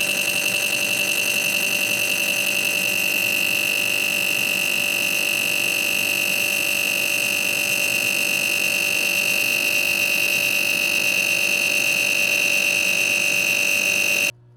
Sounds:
engine

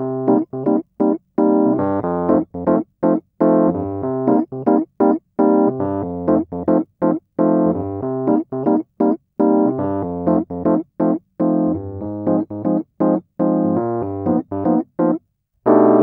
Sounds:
musical instrument
music
piano
keyboard (musical)

